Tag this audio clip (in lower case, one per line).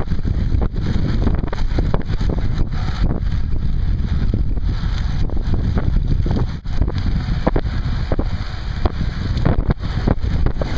bicycle
vehicle